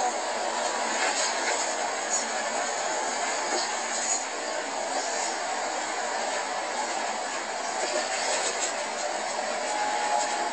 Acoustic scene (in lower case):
bus